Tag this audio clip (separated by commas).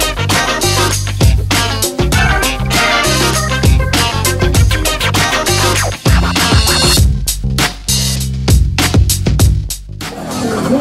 Music